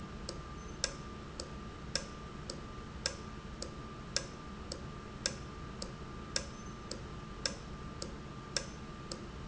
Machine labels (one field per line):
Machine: valve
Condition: normal